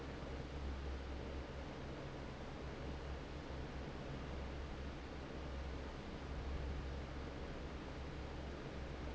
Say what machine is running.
fan